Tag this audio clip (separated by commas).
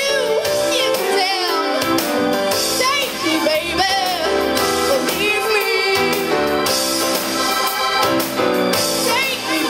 Singing, Female singing, Music